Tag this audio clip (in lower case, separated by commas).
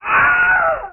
human voice, screaming